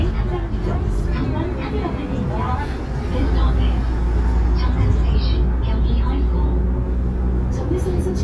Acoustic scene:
bus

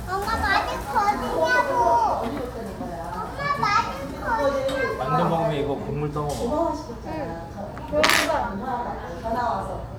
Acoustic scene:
restaurant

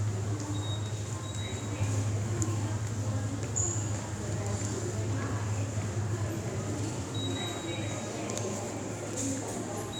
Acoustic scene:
subway station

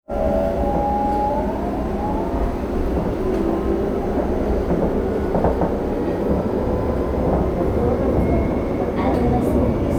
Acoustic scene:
subway train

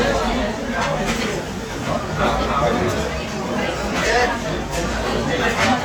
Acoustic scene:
crowded indoor space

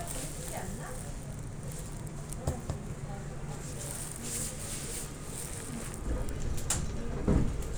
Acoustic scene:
subway train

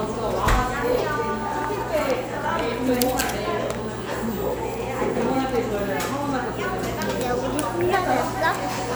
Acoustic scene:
cafe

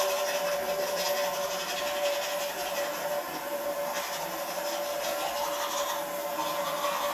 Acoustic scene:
restroom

